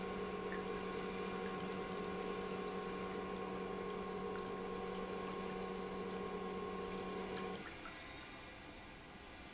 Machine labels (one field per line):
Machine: pump